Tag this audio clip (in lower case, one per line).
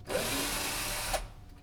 tools